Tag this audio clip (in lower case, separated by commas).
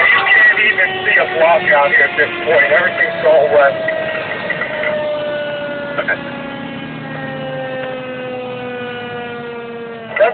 speech, vehicle, truck, fire engine